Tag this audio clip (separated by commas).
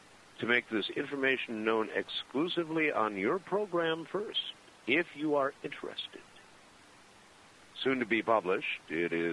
Speech